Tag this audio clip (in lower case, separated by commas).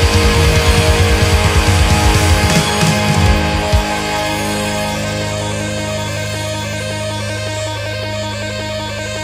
heavy metal